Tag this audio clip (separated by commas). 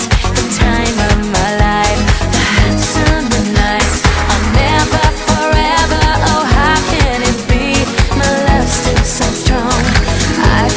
Music